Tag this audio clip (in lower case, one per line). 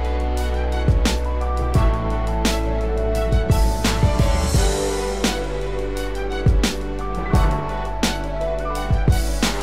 sound effect